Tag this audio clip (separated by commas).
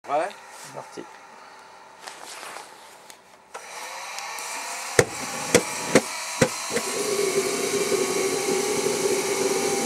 Speech